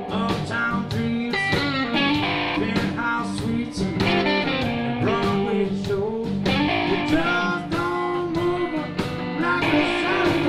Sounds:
music

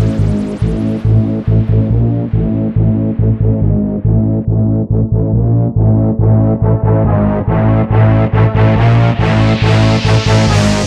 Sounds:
music

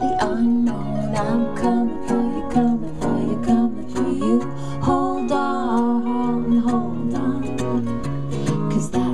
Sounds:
music

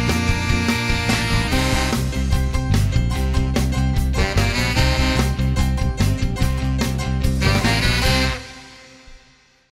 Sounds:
music

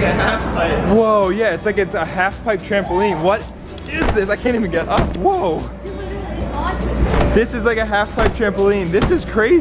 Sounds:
bouncing on trampoline

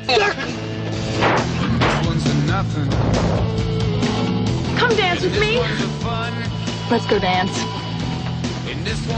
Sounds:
music, speech

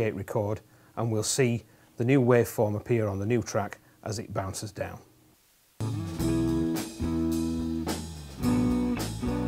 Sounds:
speech, music, blues

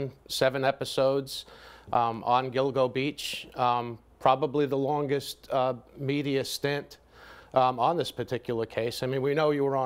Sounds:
speech

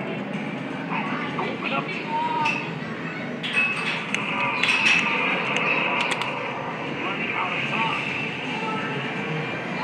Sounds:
speech

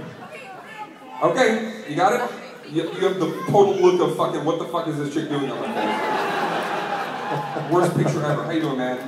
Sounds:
speech

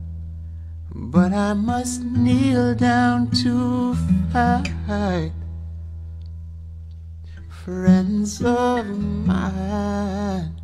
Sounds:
music

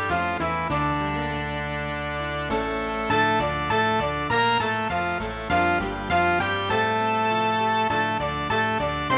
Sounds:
music, sad music

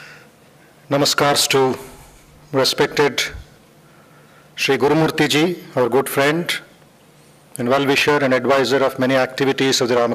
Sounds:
male speech, speech, monologue

